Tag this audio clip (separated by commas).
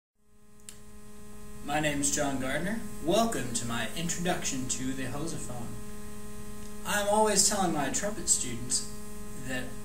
Hum